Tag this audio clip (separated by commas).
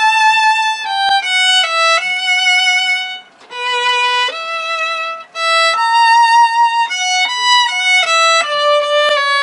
Musical instrument, Music, Violin